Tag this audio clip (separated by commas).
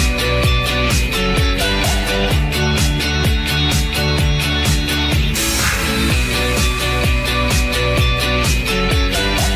Music